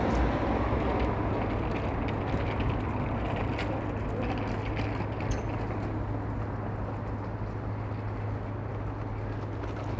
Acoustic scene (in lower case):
street